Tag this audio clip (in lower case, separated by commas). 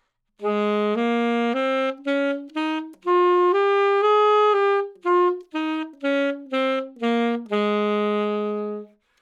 music, musical instrument, woodwind instrument